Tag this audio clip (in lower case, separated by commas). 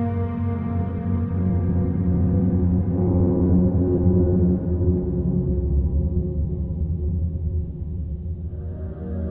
music, electronica, electronic music, ambient music, new-age music